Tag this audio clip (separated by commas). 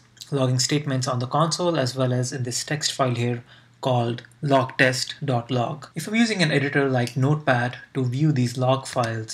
Speech